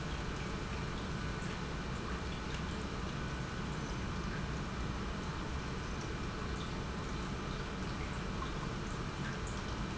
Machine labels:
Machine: pump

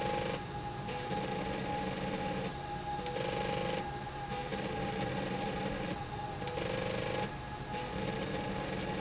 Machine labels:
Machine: slide rail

